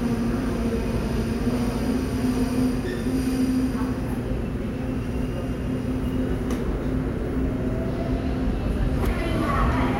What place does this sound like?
subway station